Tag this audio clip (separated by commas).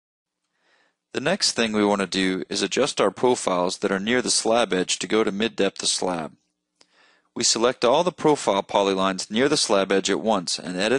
Speech